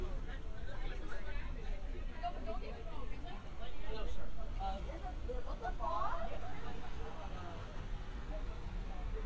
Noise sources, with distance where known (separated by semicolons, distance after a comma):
person or small group talking, near